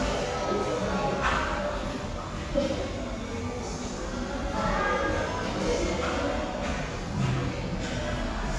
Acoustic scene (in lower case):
crowded indoor space